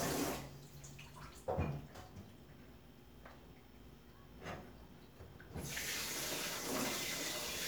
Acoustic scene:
kitchen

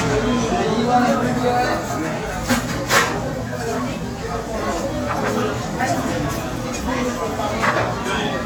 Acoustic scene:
restaurant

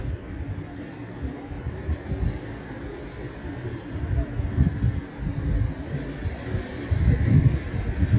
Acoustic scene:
residential area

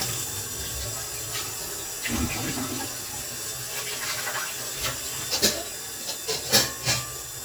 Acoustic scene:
kitchen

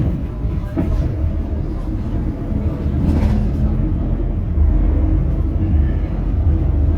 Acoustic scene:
bus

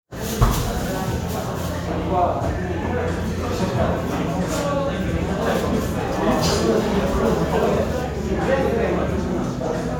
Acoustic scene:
crowded indoor space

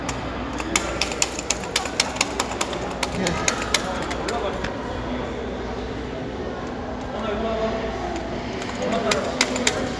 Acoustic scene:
crowded indoor space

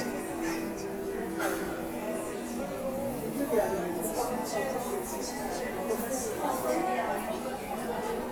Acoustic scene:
subway station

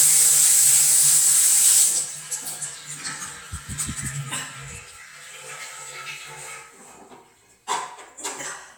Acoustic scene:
restroom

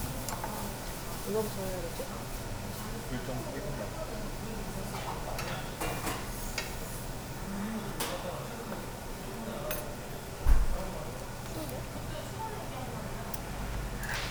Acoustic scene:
restaurant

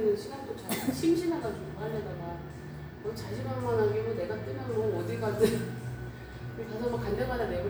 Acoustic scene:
cafe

